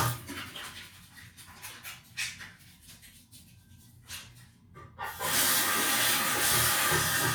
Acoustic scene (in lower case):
restroom